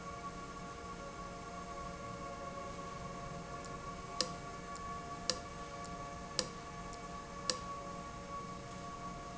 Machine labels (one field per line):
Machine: valve